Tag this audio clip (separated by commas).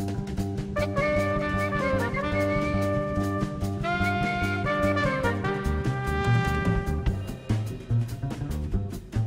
Music